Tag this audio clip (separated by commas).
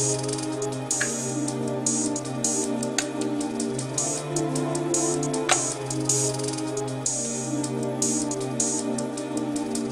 Music